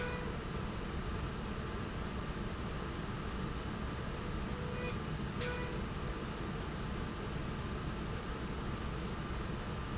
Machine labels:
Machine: slide rail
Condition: normal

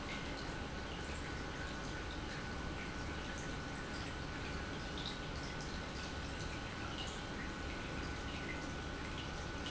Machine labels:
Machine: pump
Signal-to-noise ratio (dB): 0 dB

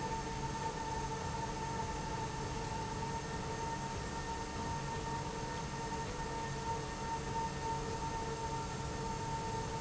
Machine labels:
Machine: slide rail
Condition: normal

